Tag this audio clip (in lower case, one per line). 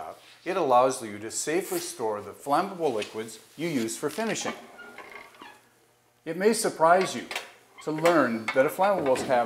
speech